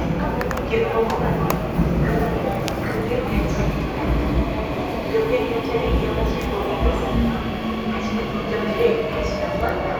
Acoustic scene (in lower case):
subway station